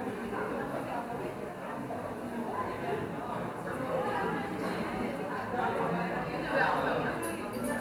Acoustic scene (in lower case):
cafe